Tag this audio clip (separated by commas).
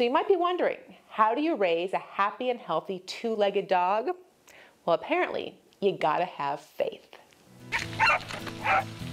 Speech, Music, Bow-wow, Dog